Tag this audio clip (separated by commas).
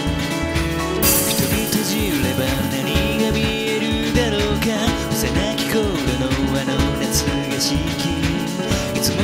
Music